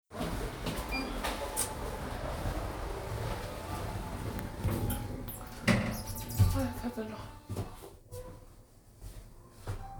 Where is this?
in an elevator